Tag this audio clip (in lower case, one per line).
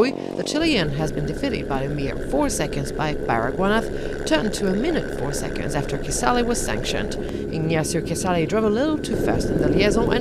speech
vehicle